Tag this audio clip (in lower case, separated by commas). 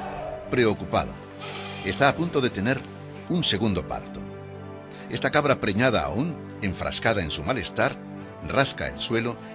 goat, speech, music